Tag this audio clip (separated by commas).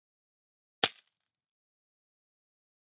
Shatter, Glass